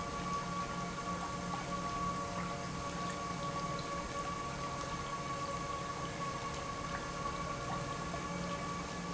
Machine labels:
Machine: pump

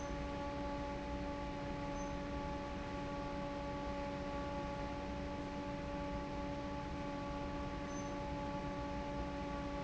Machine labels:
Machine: fan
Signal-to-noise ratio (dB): 0 dB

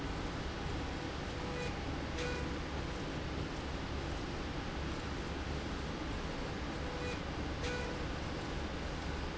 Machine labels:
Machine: slide rail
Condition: normal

